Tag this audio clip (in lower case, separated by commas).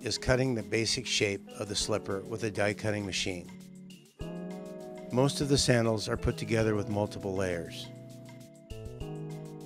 music, speech